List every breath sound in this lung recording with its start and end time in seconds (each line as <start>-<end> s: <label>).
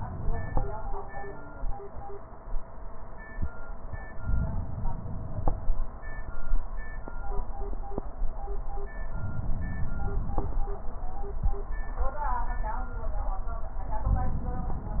4.08-5.58 s: inhalation
9.06-10.46 s: inhalation